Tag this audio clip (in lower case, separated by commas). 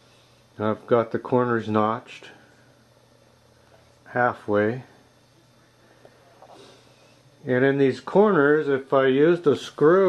speech